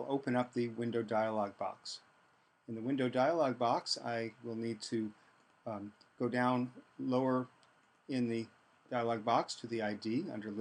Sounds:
speech

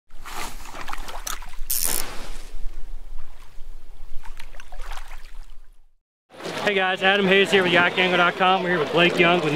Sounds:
boat
kayak
vehicle
speech

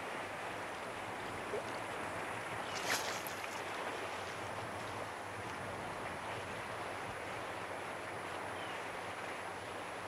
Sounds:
gurgling

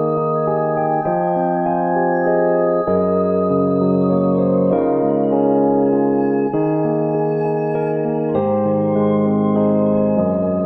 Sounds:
music

